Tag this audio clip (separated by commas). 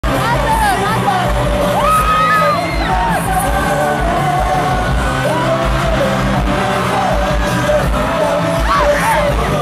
Music, Singing, Pop music